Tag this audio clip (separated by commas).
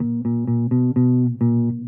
Bass guitar, Music, Plucked string instrument, Musical instrument, Guitar